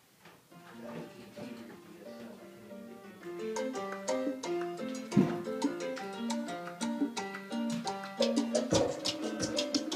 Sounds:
music, speech

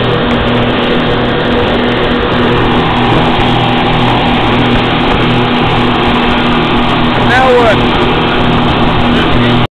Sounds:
speedboat, speech

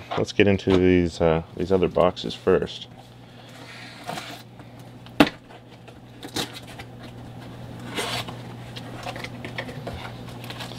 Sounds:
speech, inside a small room

